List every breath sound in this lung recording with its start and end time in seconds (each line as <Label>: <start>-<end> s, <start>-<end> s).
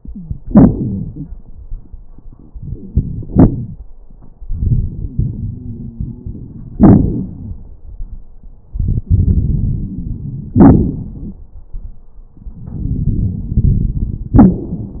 Inhalation: 2.49-3.21 s, 4.42-6.76 s, 8.76-10.54 s, 12.49-14.37 s
Exhalation: 3.25-3.85 s, 6.76-7.81 s, 10.57-11.53 s, 14.36-15.00 s
Wheeze: 0.00-1.31 s, 4.97-6.76 s, 9.08-10.54 s
Crackles: 2.49-3.21 s, 3.25-3.85 s, 6.76-7.81 s, 10.57-11.53 s, 12.49-14.37 s, 14.40-15.00 s